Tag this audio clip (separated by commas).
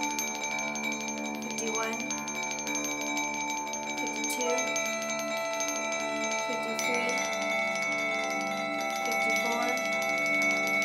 Mallet percussion, xylophone, Glockenspiel